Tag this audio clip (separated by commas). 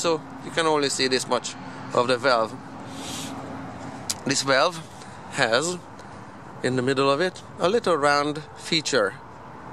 Speech